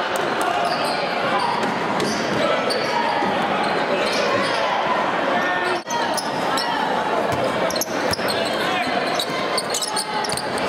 Constant squeaking and dribbles of a basketball while the audience chatters followed by individuals yelling and appraises